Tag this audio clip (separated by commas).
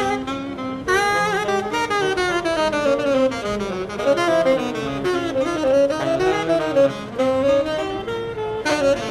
woodwind instrument, Musical instrument, Music, Saxophone, playing saxophone, Jazz